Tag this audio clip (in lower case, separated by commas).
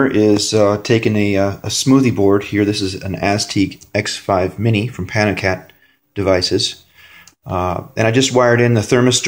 speech